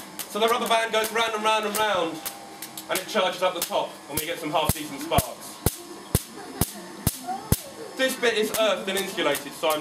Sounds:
speech, static

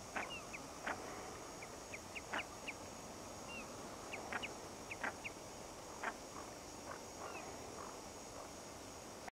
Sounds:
honk

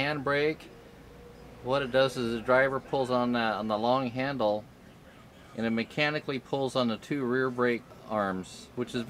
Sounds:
speech

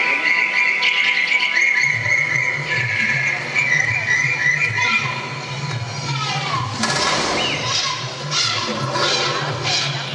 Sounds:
speech, music

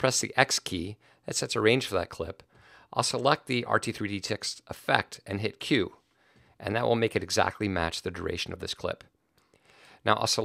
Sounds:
speech

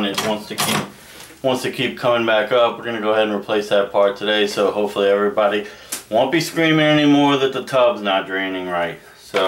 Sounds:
speech

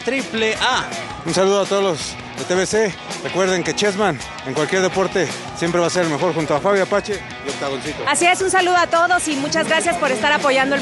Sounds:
music, speech

